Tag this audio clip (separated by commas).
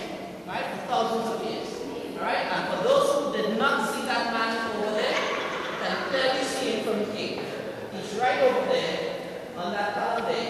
Speech